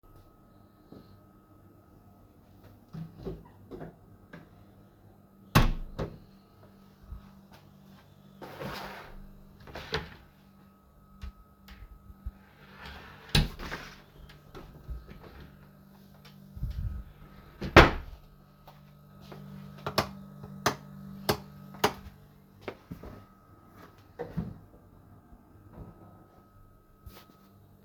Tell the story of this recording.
I walk in the halway, opening and closing the wardrobe and sliding my shoes which are on the way, then I flip the light switch and open and close a nearby door